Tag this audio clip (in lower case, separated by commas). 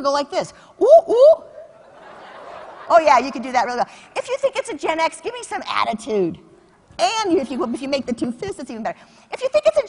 speech